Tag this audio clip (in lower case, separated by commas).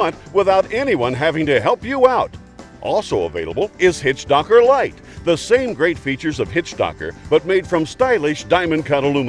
speech, music